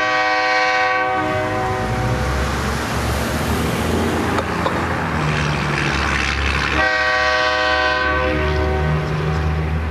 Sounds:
Train whistle, Vehicle

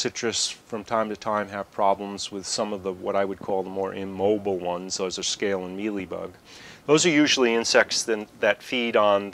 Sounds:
Speech

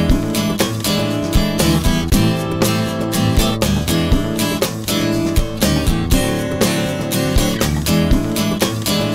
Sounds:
Music

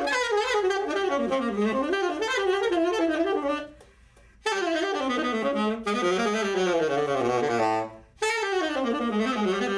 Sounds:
Brass instrument, playing saxophone, Musical instrument, Music, Saxophone, woodwind instrument

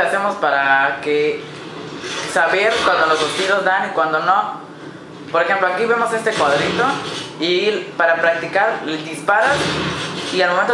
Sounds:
Speech

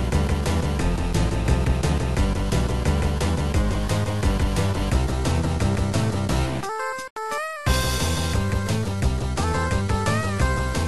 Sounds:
Roll, Rock and roll, Music

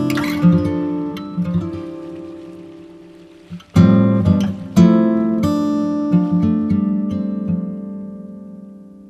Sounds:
Music, kayak

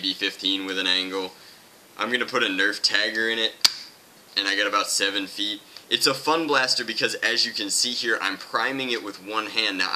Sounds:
Speech

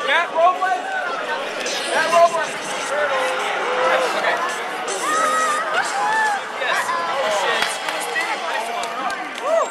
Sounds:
Smash, Speech

